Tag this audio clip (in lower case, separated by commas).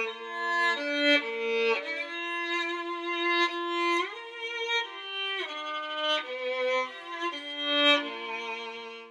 music, fiddle, musical instrument